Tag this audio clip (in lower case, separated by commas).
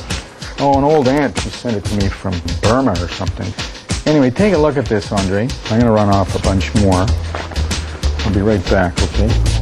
speech, music